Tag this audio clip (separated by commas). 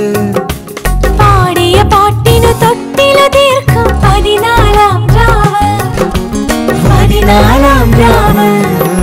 Female singing, Music, Male singing